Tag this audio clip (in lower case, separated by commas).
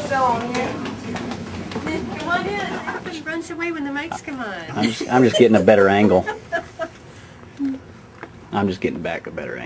speech